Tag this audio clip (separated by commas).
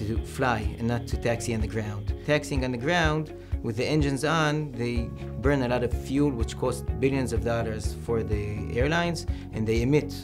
Speech, Music